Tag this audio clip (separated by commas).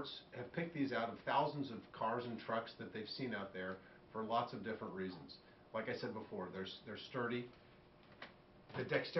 Speech